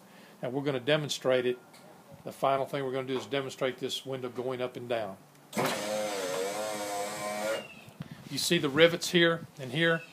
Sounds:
Speech

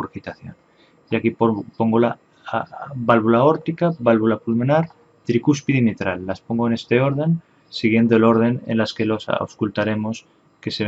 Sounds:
Speech

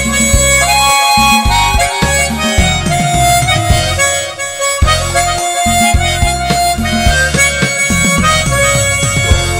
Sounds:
playing harmonica

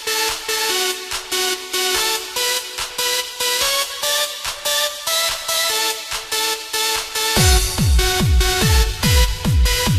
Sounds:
Electronic music, Techno, Music

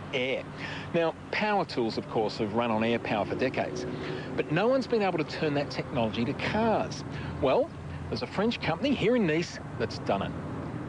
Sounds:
Speech

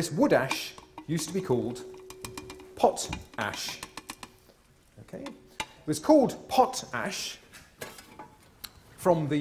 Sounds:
Speech

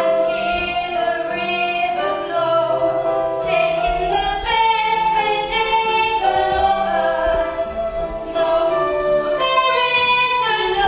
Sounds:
Music

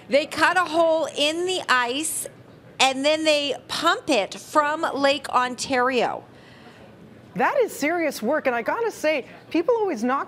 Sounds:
Speech

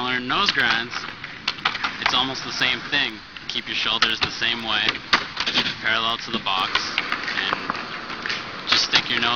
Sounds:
Speech

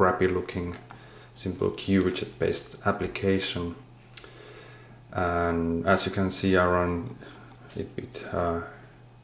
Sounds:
Speech

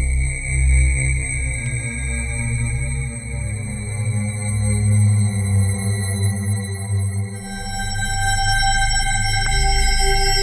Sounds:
Music, Synthesizer

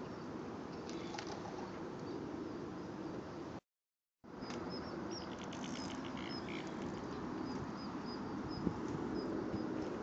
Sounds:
Wind noise (microphone), Wind

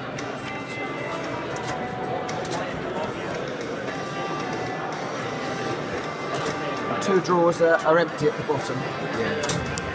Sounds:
Music, Speech

